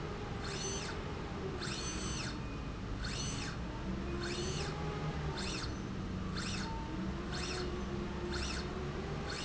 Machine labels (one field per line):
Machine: slide rail